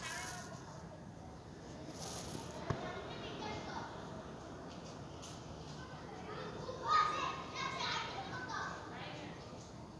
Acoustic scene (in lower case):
residential area